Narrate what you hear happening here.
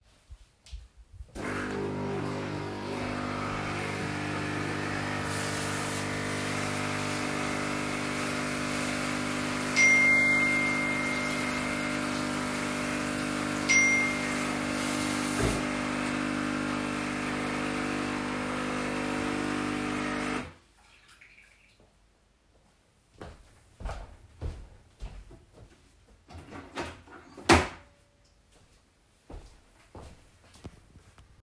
I started the coffee machine then I walked to the sink and washed my hands while washing my hands I received 2 notifications stopped washing my hands and I dried them. The coffee machine stopped so I walked to it took out the coffee pod and picked up my coffee.